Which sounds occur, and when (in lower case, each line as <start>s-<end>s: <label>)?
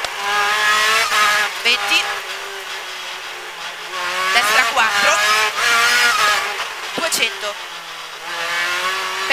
0.0s-0.1s: tick
0.0s-2.4s: accelerating
0.0s-9.3s: race car
1.6s-2.0s: woman speaking
3.8s-6.7s: accelerating
4.3s-5.1s: woman speaking
6.2s-6.4s: tick
6.9s-7.5s: woman speaking
8.2s-9.3s: accelerating